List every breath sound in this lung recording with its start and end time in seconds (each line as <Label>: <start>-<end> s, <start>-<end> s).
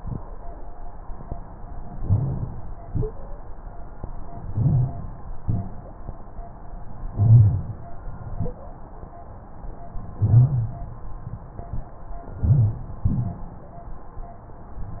Inhalation: 1.88-2.75 s, 4.35-5.22 s, 7.09-7.96 s, 10.13-10.90 s, 12.33-12.98 s
Exhalation: 13.04-13.68 s
Wheeze: 2.87-3.19 s, 5.41-5.77 s, 8.30-8.61 s